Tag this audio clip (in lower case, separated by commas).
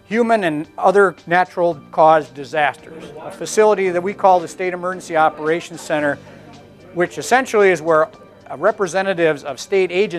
speech, music